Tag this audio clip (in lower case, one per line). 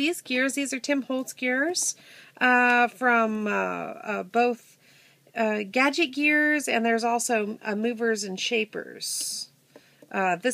speech